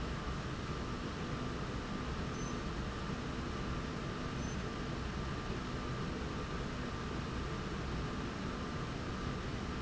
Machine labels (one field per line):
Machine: slide rail